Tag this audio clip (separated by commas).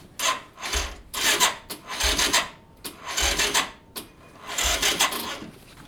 Mechanisms